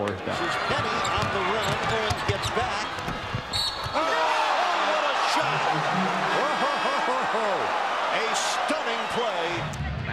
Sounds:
basketball bounce

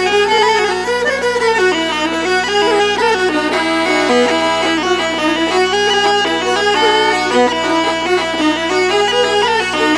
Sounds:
music
fiddle
musical instrument

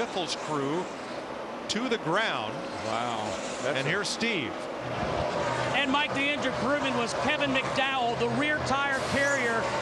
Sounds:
speech
vehicle
motor vehicle (road)
car

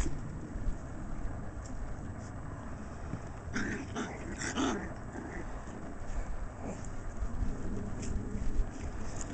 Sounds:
dog
pets
animal

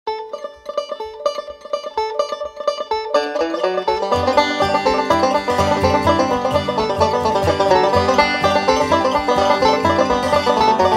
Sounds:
music
mandolin

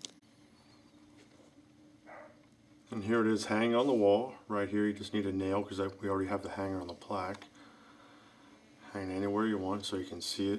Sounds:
speech

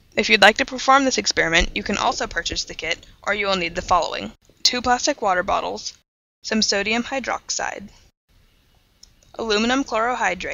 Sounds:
speech

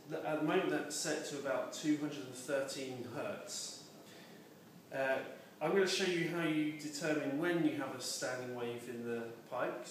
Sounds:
speech

